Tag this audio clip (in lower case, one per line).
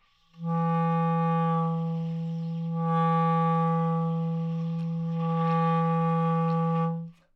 wind instrument
musical instrument
music